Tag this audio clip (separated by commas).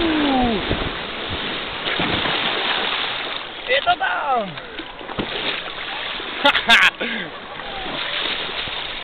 Water